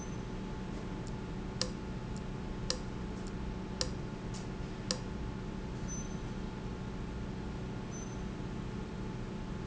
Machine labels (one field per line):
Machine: valve